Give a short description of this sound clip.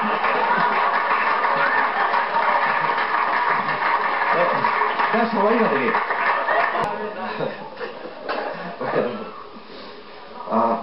A male speaks as an audience cheers